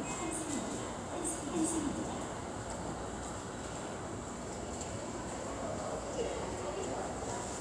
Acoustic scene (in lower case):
subway station